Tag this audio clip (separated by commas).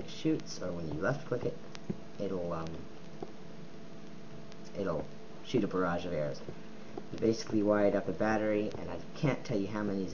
Speech